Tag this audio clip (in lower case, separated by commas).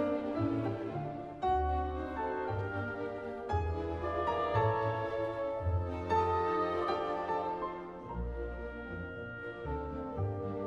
music